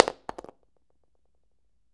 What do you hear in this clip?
plastic object falling